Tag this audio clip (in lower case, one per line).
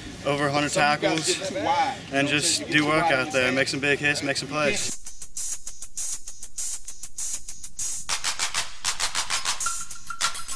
speech
music